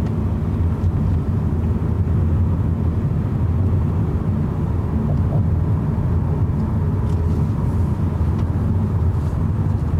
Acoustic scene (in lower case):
car